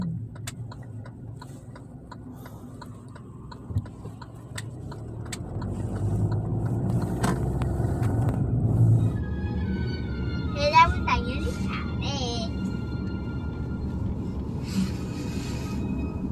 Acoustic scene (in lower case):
car